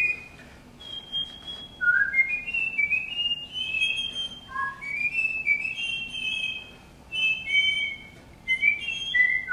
More than one person whistling a tune